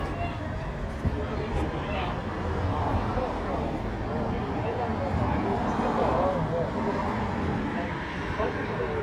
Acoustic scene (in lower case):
residential area